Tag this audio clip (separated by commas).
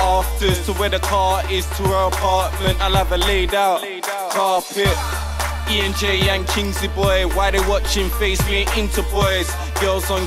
Hip hop music, Music, Rapping